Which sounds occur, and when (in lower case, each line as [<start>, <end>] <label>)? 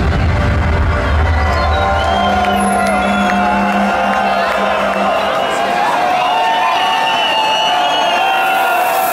[0.00, 9.12] crowd
[0.00, 9.12] music
[0.00, 9.12] shout
[1.57, 2.59] whistling
[2.37, 2.48] clapping
[2.80, 2.87] clapping
[3.23, 3.32] clapping
[4.10, 4.19] clapping
[4.46, 4.52] clapping
[4.86, 4.97] clapping
[6.25, 8.43] whistling